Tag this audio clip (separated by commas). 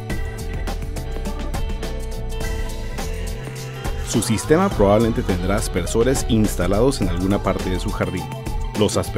Music, Speech